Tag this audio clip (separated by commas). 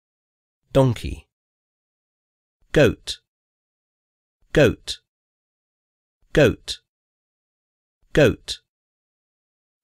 Speech